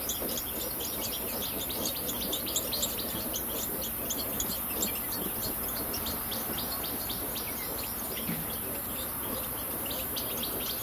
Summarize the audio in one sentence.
Birds sweetly singing and chirping and a small thud ends the clip